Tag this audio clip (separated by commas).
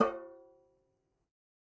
Music, Percussion, Musical instrument, Drum